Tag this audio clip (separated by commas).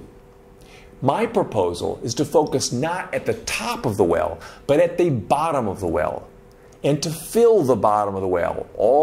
Speech